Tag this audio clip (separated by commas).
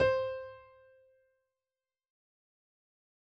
Musical instrument, Music, Keyboard (musical), Piano